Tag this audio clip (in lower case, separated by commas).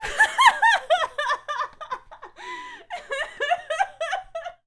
human voice, laughter